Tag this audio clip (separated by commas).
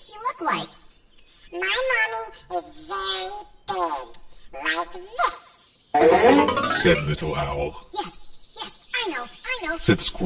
Speech, Music